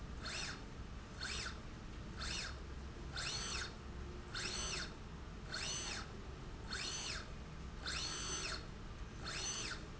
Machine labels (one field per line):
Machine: slide rail